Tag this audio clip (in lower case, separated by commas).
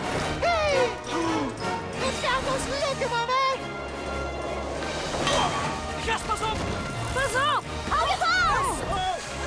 vehicle, music, speech, bicycle